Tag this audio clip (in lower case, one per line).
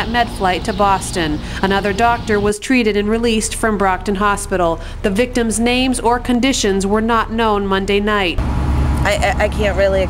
speech
vehicle